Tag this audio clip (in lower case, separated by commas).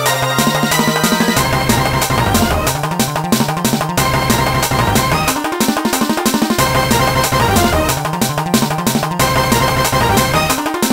video game music, music